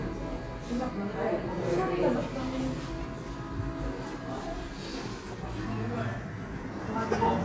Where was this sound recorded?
in a cafe